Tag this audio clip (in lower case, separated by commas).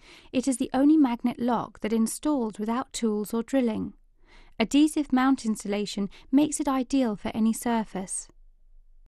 speech